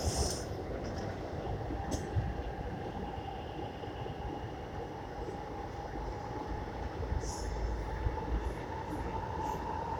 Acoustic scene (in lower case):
subway train